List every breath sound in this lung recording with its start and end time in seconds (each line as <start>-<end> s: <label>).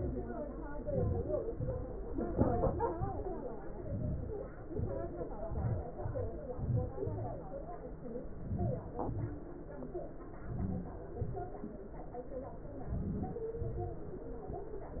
0.84-1.43 s: inhalation
1.57-1.96 s: exhalation
3.85-4.40 s: inhalation
4.71-5.17 s: exhalation
5.51-5.92 s: inhalation
6.00-6.28 s: exhalation
6.57-6.95 s: inhalation
7.04-7.32 s: exhalation
8.46-8.89 s: inhalation
9.01-9.32 s: exhalation
10.52-11.02 s: inhalation
11.21-11.60 s: exhalation
12.94-13.52 s: inhalation
13.62-14.03 s: exhalation